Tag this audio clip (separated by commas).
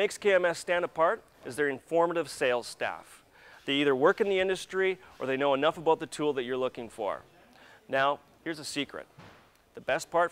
Speech